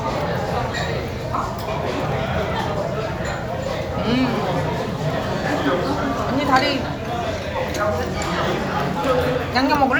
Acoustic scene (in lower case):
restaurant